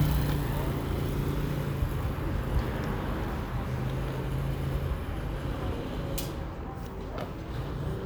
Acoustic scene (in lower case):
residential area